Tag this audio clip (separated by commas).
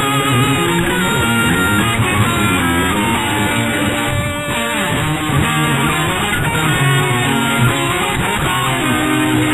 Music, Heavy metal